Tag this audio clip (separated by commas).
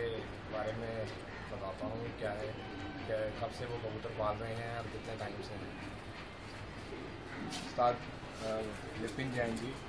outside, urban or man-made, Male speech, Speech